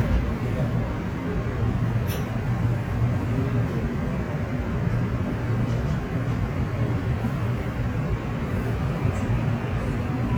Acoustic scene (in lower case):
subway train